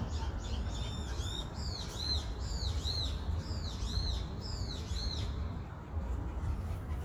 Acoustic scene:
park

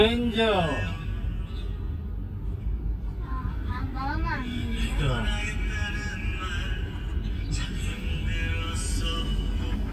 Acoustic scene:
car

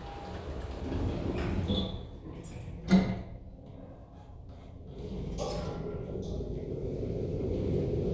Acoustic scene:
elevator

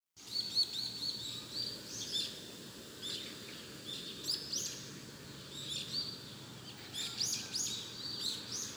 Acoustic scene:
park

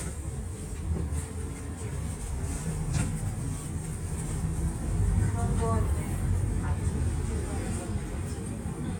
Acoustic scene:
bus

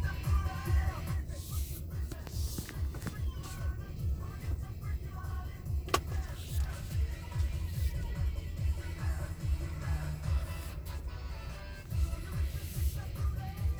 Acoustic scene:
car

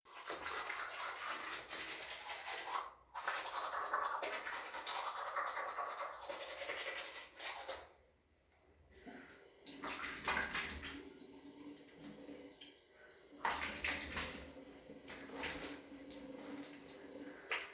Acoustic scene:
restroom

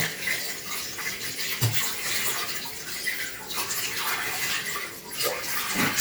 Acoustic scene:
restroom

